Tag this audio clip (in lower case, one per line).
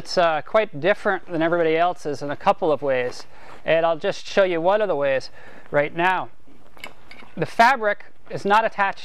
speech